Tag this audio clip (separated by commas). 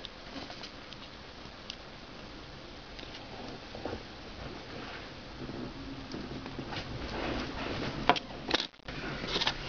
inside a small room, Silence